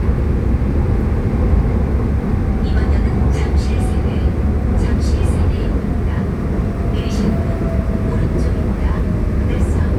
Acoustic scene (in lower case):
subway train